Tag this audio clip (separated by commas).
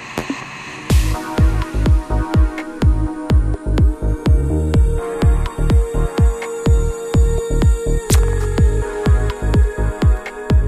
Music